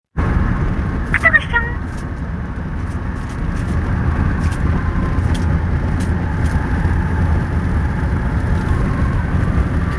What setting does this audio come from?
car